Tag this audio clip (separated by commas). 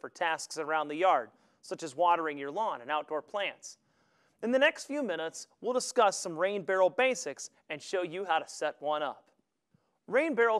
Speech